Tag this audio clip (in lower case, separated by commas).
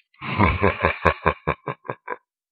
laughter, human voice